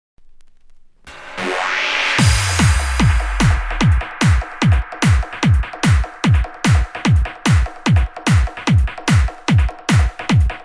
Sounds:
trance music, music

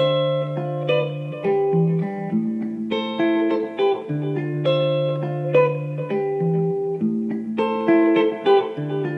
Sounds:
strum, music, musical instrument, plucked string instrument, acoustic guitar, guitar

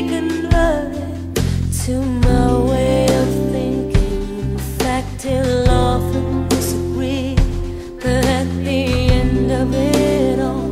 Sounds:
christian music, music

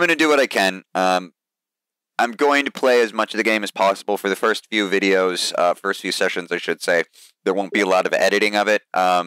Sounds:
speech

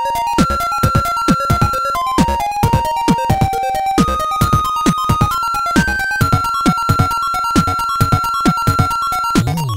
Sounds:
music, soundtrack music

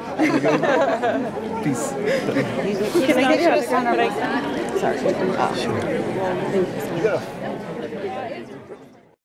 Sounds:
speech

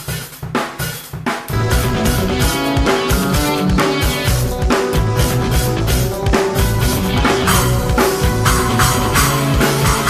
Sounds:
music

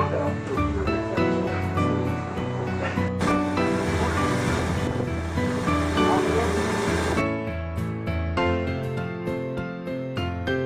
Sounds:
hiss, music

